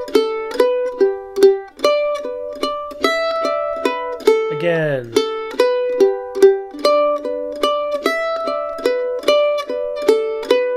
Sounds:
playing mandolin

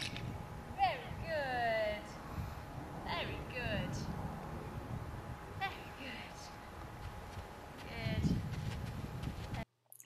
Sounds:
speech

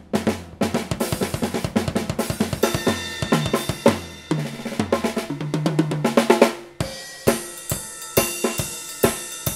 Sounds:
musical instrument
hi-hat
snare drum
music
cymbal
drum kit
drum
percussion
bass drum

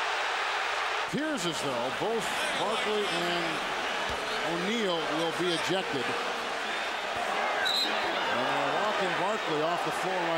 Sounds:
basketball bounce

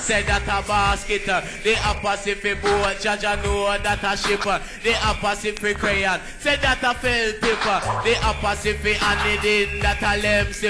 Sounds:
music

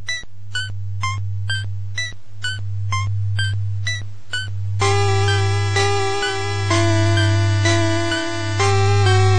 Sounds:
music
middle eastern music

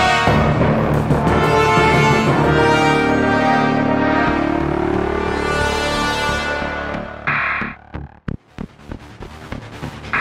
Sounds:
soundtrack music
electronic music
music

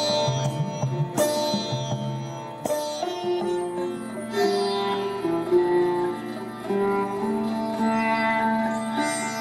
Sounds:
sitar
music

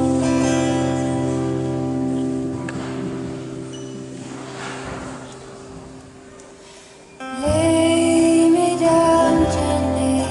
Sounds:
lullaby
music

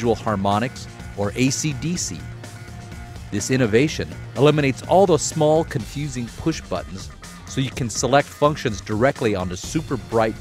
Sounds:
music
speech

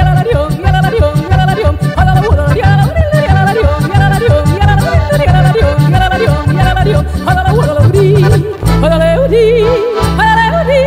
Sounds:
yodelling

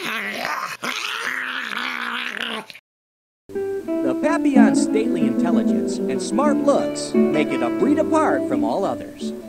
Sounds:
dog
music
animal
pets
inside a small room
speech

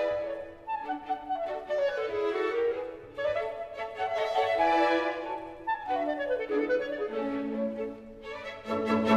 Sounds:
playing clarinet

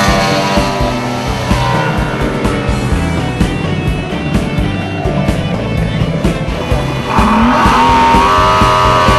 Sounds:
vehicle
speedboat
boat
music

